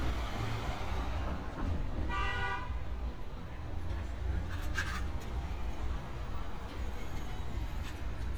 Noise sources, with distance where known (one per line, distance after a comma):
car horn, near